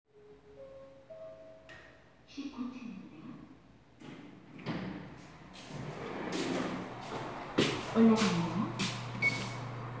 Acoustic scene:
elevator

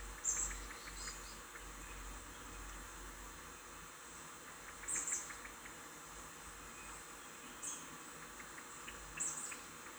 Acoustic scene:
park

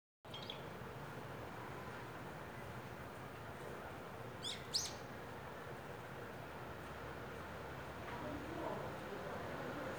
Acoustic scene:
residential area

